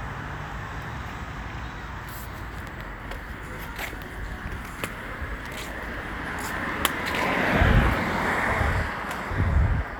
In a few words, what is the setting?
residential area